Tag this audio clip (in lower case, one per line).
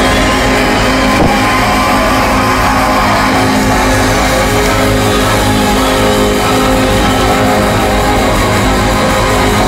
music